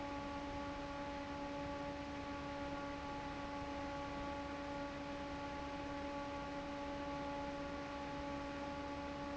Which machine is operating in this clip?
fan